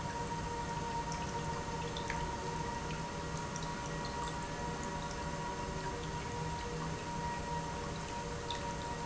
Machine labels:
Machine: pump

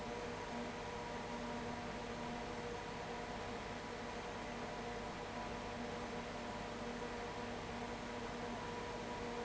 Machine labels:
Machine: fan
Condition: abnormal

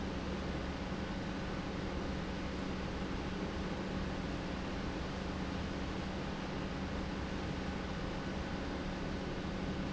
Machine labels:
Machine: pump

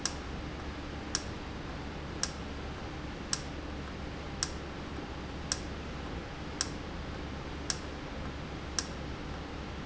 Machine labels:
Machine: valve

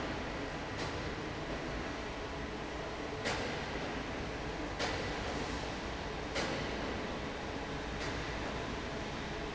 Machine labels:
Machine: fan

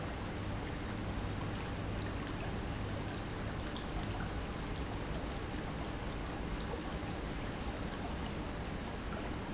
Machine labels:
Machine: pump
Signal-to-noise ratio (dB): -6 dB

